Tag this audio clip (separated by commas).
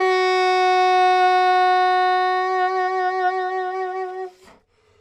Wind instrument, Music, Musical instrument